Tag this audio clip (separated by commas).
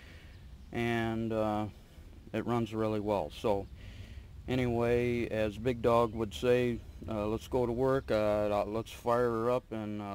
Speech